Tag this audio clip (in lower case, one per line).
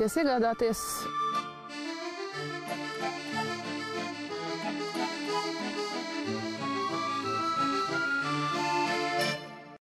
accordion